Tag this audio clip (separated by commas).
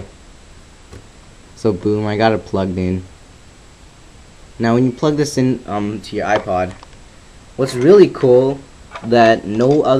Speech